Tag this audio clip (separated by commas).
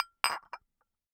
Glass